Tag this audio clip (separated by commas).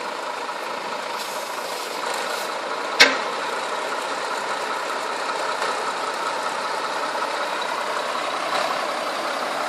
Vehicle, Truck